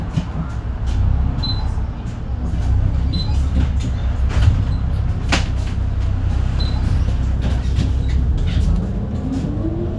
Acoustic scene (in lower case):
bus